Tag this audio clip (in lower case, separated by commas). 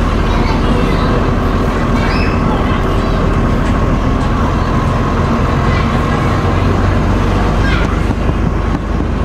vehicle, speech